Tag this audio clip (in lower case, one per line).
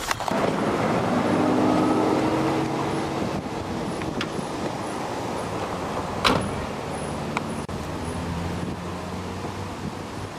car
outside, rural or natural
vehicle